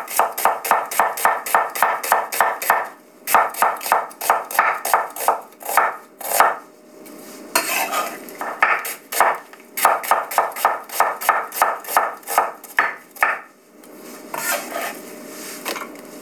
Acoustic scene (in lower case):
kitchen